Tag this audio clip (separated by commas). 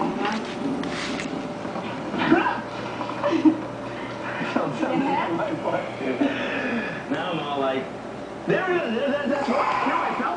Speech, inside a small room